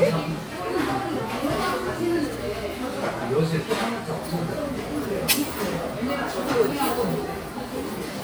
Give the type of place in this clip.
crowded indoor space